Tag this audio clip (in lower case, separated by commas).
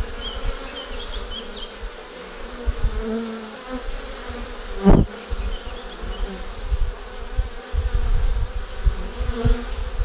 etc. buzzing